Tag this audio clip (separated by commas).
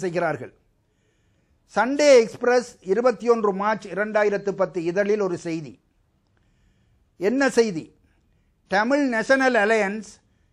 Speech, Male speech